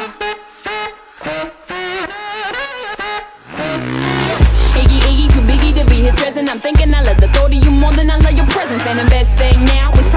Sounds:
Music

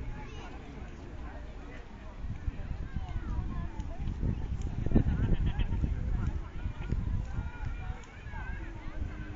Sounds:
Speech

